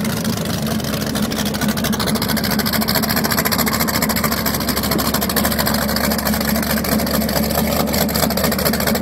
Sputtering of a boat engine